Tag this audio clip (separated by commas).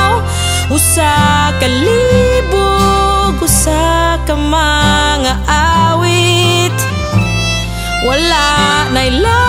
Singing, Harmonica